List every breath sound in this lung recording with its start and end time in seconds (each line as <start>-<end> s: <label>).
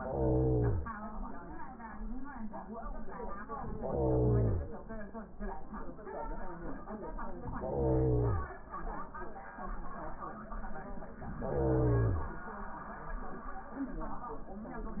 0.00-0.87 s: inhalation
3.77-4.64 s: inhalation
7.60-8.47 s: inhalation
11.43-12.30 s: inhalation